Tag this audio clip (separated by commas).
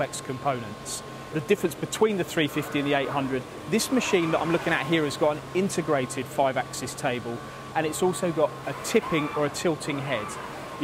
Tools, Speech